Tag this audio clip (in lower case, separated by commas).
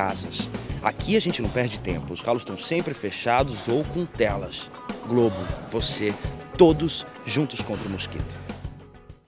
speech, music